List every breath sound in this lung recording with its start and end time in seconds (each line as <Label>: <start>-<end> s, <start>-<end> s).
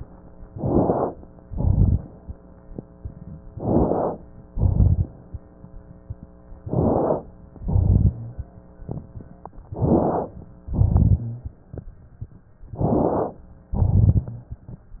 Inhalation: 0.47-1.14 s, 3.51-4.18 s, 6.62-7.29 s, 9.71-10.38 s, 12.75-13.47 s
Exhalation: 1.46-2.13 s, 4.48-5.14 s, 7.59-8.20 s, 10.66-11.33 s, 13.74-14.42 s
Crackles: 0.47-1.14 s, 1.46-2.13 s, 3.51-4.18 s, 4.48-5.14 s, 6.62-7.29 s, 7.59-8.20 s, 9.71-10.38 s, 10.66-11.33 s, 12.75-13.47 s, 13.74-14.42 s